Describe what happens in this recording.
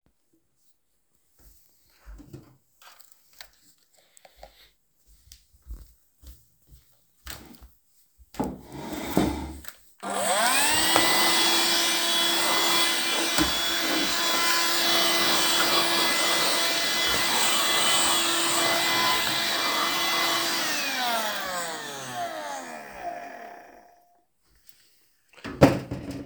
walked to the shelf and grabed the vacuum cleaner, moved towards the desk and moved the chair to cleaned under the desk. afterwards I turned it off and put the vacuum cleaner back